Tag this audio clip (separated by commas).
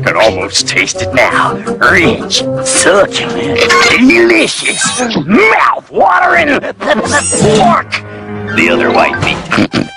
Speech